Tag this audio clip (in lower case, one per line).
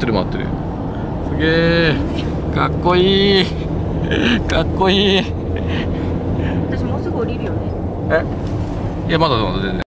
speech
vehicle